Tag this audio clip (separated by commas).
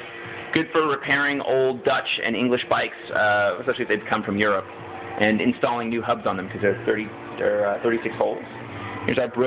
Speech